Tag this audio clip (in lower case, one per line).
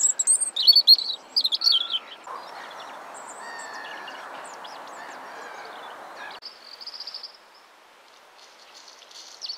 mynah bird singing